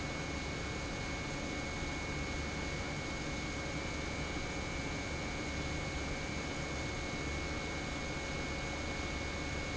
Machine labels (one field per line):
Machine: pump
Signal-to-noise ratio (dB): -6 dB